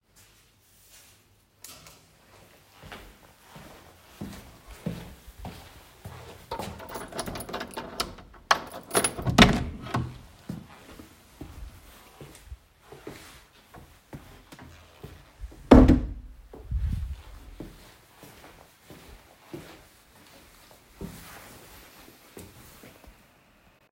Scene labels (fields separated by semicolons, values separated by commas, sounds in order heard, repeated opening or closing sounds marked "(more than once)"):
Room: hallway, office; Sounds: footsteps, keys, door (more than once)